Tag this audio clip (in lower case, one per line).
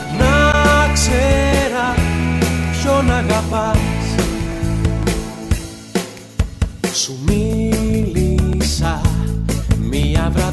independent music
music